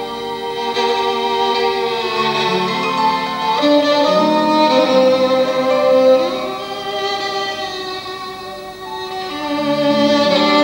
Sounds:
Music, fiddle, Musical instrument

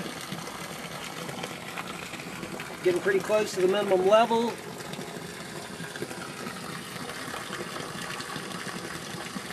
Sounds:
Water, Water tap

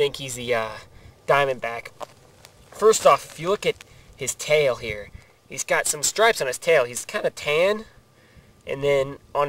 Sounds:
outside, rural or natural, Speech

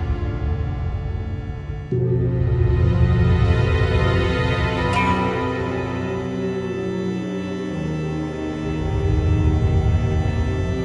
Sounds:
Music

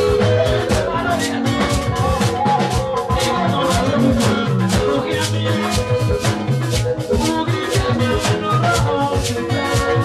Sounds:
Music

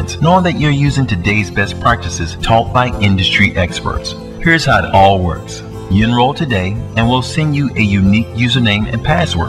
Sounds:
Speech, Music

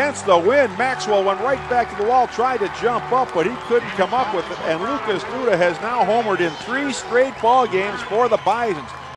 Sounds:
Speech, Run, Music

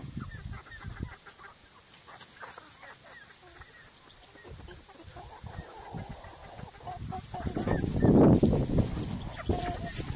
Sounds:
livestock, Bird, Fowl, rooster

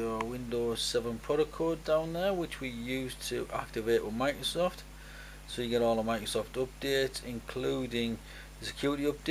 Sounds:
Speech

